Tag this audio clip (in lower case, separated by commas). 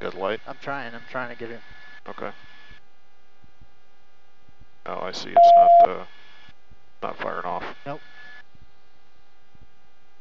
inside a small room, speech